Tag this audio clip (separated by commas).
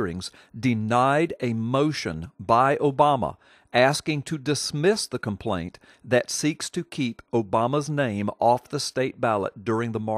Speech